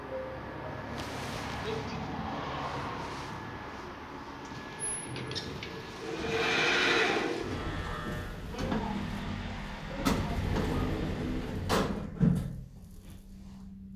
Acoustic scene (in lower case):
elevator